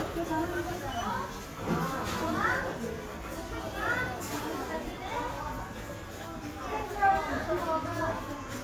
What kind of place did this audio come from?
crowded indoor space